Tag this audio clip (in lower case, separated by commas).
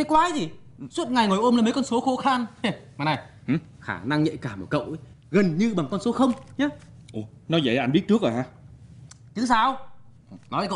speech